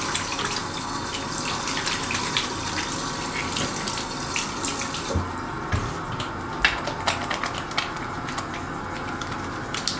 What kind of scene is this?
restroom